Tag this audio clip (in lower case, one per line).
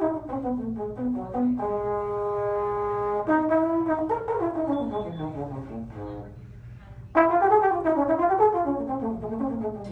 music
speech